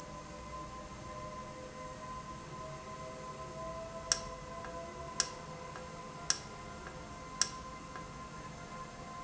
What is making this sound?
valve